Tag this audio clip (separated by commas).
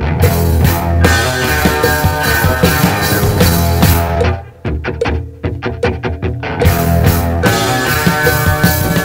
Music